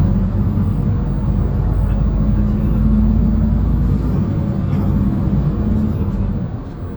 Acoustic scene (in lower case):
bus